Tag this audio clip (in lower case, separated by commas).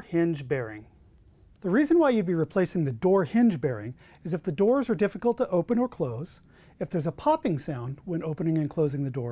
speech